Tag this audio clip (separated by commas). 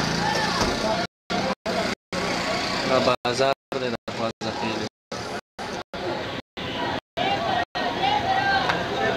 Vehicle, Speech